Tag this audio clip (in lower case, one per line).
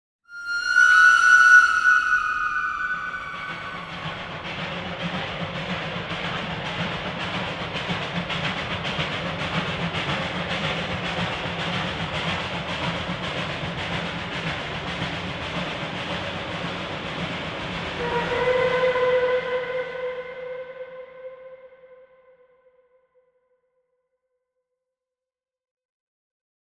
train
rail transport
vehicle